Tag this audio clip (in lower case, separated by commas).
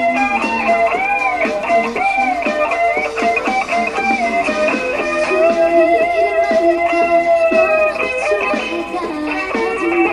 musical instrument, guitar, music, plucked string instrument, electric guitar